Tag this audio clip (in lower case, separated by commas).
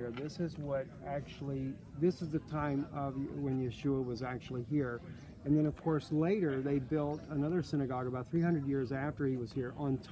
speech